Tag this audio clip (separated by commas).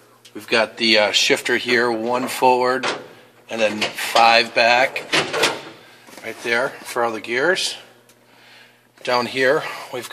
Speech